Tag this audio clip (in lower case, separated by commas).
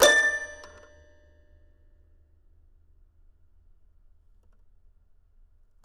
keyboard (musical), musical instrument, piano, music